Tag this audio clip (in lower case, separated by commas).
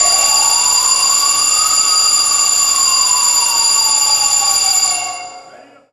alarm